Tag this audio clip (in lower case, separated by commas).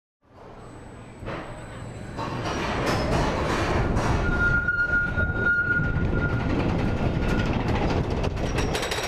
roller coaster running